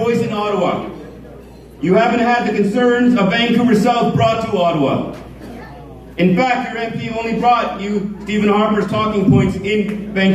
An adult male speaks forcefully